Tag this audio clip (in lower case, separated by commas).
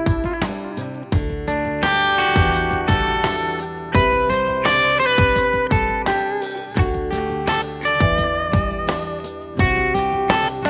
musical instrument, music